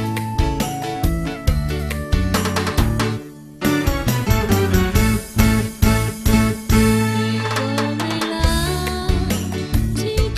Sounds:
Music

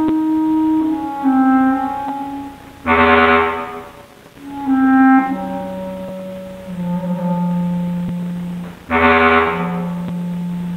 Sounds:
playing clarinet

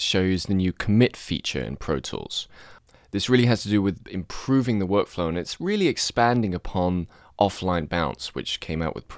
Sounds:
Speech

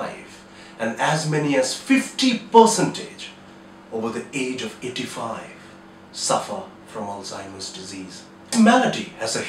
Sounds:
Speech

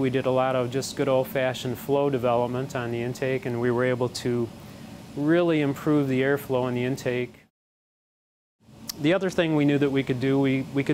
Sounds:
Speech

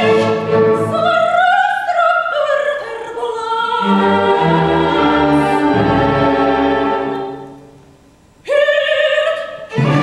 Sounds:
Opera, fiddle, Music

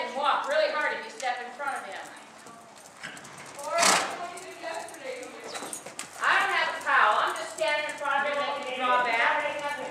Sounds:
Clip-clop, Horse, Speech, Animal

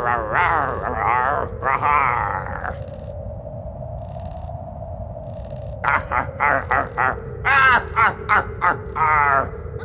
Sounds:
Music

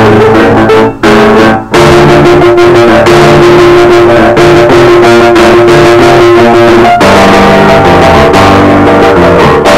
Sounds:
Music

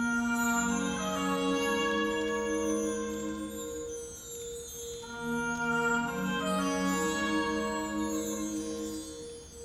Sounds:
Music, Rustling leaves

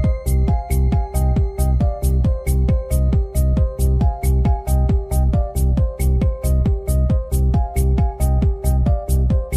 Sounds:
Music, Disco

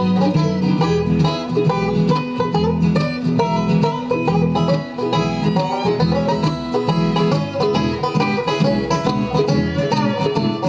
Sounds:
Music, Country, playing banjo, Banjo, Bowed string instrument, Musical instrument, Bluegrass

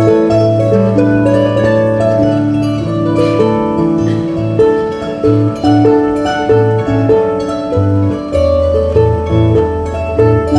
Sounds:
playing harp, Harp, Music

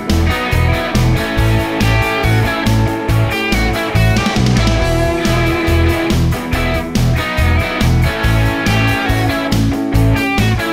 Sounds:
Music

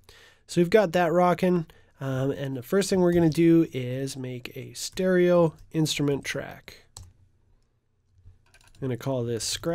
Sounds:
Computer keyboard, Typing

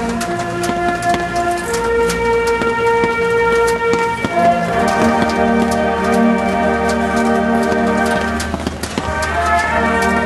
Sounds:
Music

